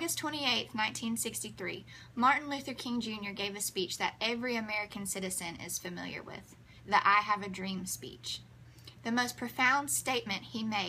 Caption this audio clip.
Woman speaking